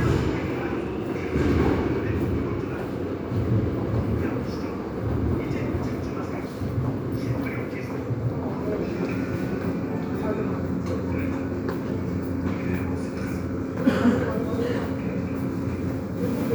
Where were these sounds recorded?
in a subway station